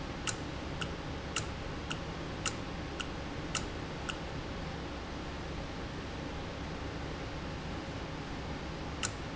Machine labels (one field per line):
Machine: valve